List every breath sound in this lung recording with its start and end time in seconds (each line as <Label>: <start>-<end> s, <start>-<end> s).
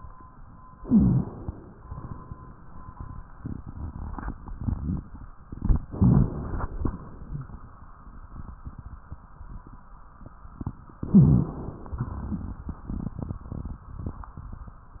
Inhalation: 0.78-1.73 s, 5.88-6.83 s, 11.06-11.96 s
Exhalation: 1.82-2.62 s, 6.89-7.69 s, 11.99-12.81 s
Rhonchi: 0.78-1.35 s, 5.88-6.45 s, 11.06-11.63 s